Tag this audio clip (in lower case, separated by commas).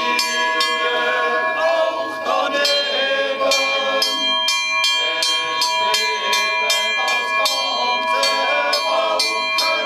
cattle